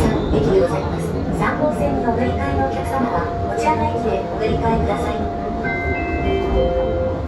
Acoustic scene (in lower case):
subway train